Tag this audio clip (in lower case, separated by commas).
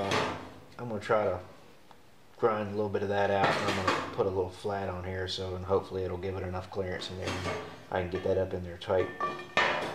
speech, inside a large room or hall